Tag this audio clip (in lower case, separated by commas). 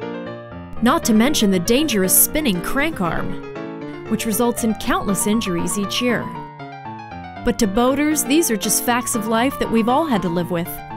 speech, music